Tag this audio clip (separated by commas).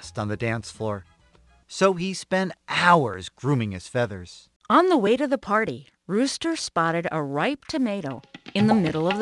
Speech, Music